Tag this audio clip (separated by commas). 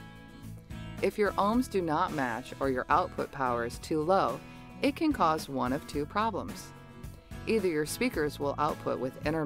Music, Speech